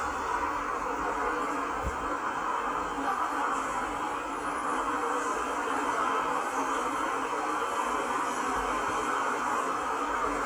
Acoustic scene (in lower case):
subway station